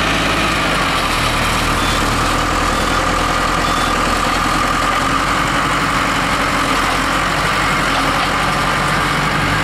Engines idle and rattle mixed with banging on beeping